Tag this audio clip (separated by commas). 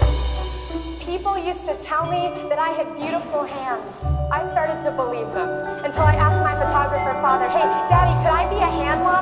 Music, Percussion, Speech